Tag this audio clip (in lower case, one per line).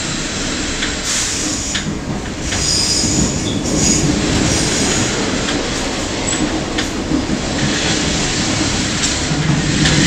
rail transport
train wagon
clickety-clack
train